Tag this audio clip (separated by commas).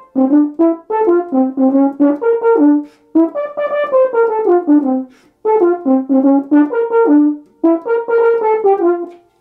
Brass instrument, French horn, playing french horn